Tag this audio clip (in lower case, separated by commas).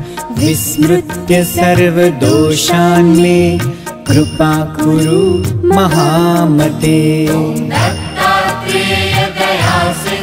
music, mantra